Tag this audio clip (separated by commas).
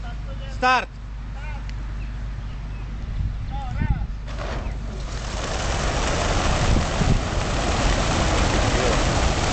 outside, rural or natural, Pigeon, Speech, Vehicle, Truck